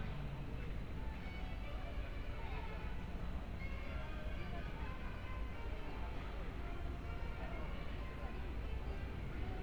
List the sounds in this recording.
music from a fixed source